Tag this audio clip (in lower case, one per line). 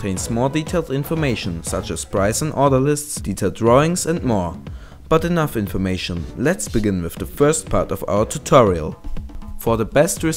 speech
music